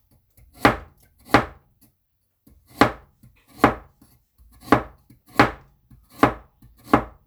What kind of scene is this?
kitchen